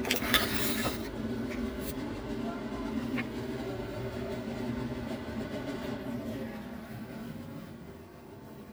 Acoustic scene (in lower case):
kitchen